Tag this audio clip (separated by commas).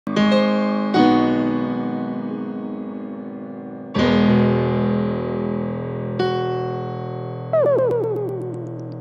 Piano, Keyboard (musical)